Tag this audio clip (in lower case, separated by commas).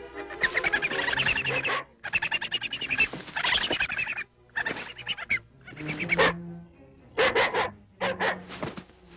pets, bow-wow, dog, animal, music